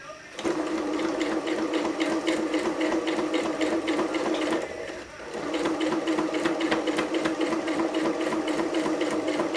A sewing machine runs slowly